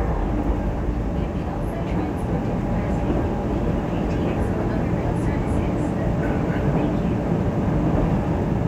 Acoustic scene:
subway train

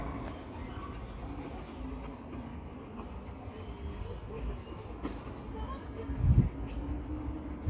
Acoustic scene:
residential area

